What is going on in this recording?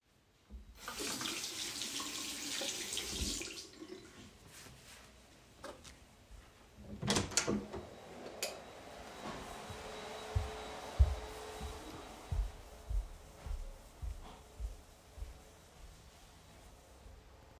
I washed my hands in the sink and dried them with a towel before opening the bathroom’s door, switching off the lights and walking into the hallway, where a vacuum cleaner was being used.